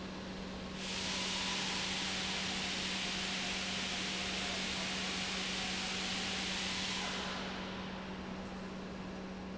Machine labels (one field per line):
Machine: pump